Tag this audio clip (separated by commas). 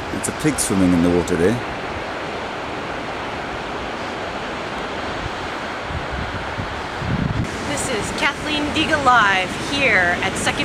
Speech